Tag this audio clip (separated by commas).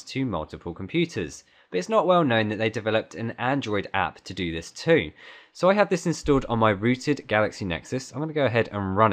Speech